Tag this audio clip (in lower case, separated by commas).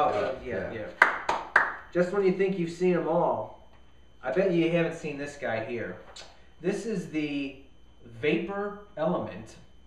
speech